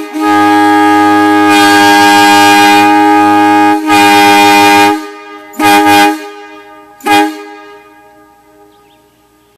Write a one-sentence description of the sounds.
A truck horn honking very loudly